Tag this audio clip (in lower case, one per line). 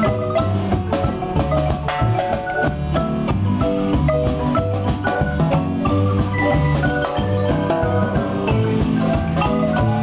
music
musical instrument
drum
xylophone
drum kit
percussion